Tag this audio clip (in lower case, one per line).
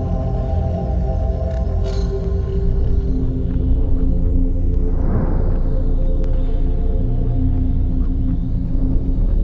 music